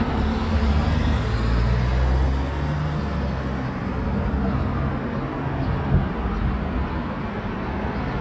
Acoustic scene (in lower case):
residential area